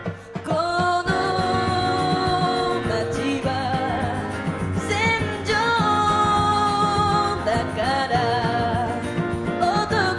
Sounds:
music

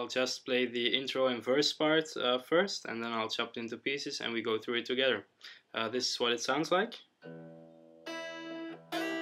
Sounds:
guitar
strum
music
musical instrument
speech
plucked string instrument
electric guitar

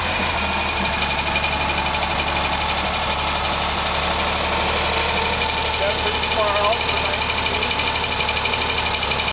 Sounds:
engine
speech
medium engine (mid frequency)
vehicle
idling

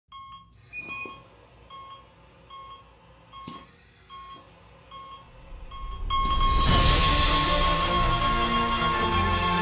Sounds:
inside a large room or hall
music

